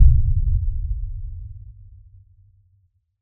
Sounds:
Explosion, Boom

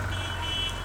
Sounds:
Motor vehicle (road), Car, Alarm, car horn, Vehicle

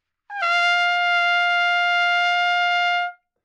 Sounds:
Trumpet, Brass instrument, Musical instrument, Music

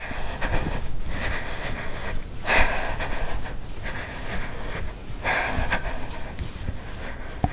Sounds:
Breathing, Respiratory sounds

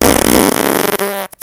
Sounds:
Fart

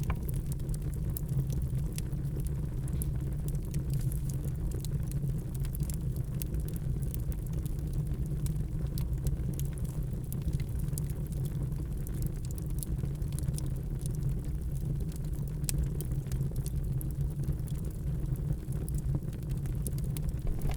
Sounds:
Fire

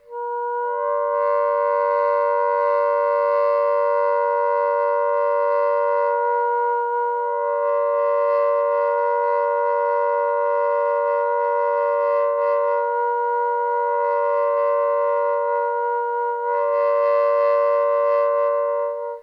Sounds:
Musical instrument, Music, woodwind instrument

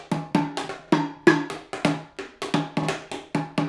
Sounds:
Drum kit, Music, Percussion, Drum, Musical instrument

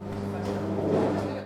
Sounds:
Microwave oven, Domestic sounds

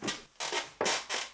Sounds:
Squeak

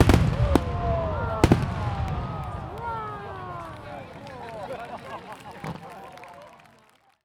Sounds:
Crowd, Fireworks, Human group actions, Explosion

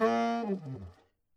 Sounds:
Musical instrument, Wind instrument, Music

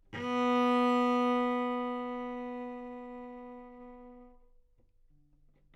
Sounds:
Music, Bowed string instrument, Musical instrument

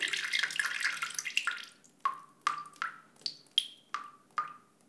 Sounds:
Rain, Liquid, Drip, Water, Raindrop

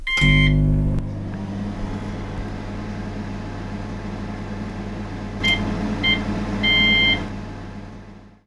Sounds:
Microwave oven, Domestic sounds

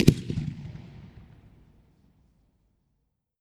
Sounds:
Fireworks, Boom, Explosion

